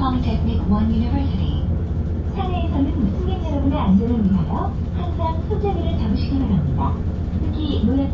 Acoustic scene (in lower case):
bus